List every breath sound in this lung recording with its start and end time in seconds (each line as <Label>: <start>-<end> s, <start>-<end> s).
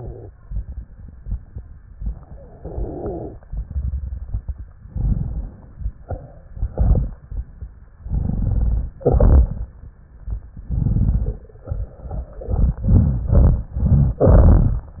Inhalation: 2.58-3.35 s, 4.90-5.67 s, 8.07-8.93 s, 10.68-11.45 s
Exhalation: 3.47-4.77 s, 9.00-9.73 s
Wheeze: 2.57-3.39 s